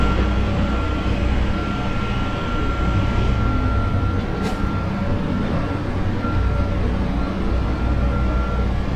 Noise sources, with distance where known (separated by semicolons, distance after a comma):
large-sounding engine, near; reverse beeper